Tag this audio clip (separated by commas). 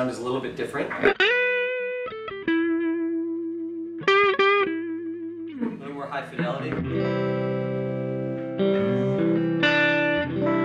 Musical instrument, Speech, Music, Reverberation, inside a small room, Plucked string instrument, Guitar